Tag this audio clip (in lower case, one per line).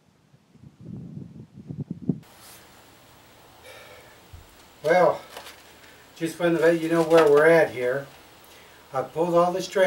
speech